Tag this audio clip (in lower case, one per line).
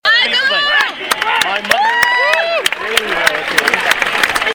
hands
clapping
human group actions
cheering